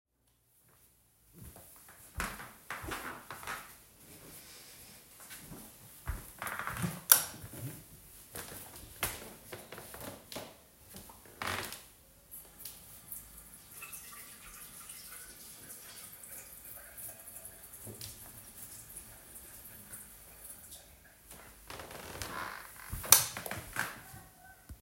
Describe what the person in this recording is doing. I walked to the bathroom, turned the light on, and washed my hands. Then I left and turned the light off again.